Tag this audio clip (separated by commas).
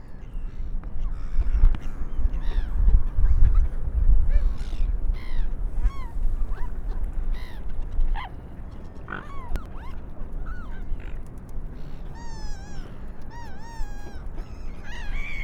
Wild animals, seagull, Bird, Animal